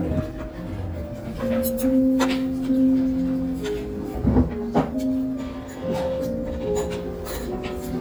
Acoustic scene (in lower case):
restaurant